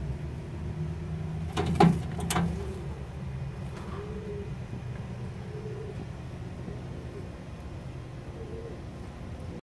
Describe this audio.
A small animal making noises in a cage or confined environment